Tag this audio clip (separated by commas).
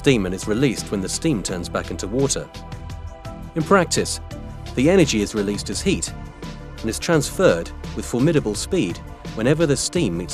Speech, Music